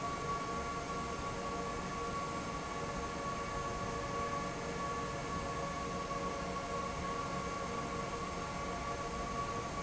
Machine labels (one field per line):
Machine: fan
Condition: normal